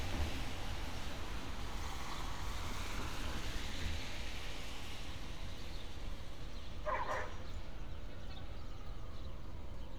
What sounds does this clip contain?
dog barking or whining